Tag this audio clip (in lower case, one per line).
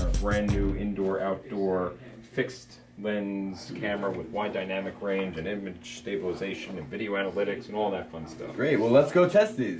speech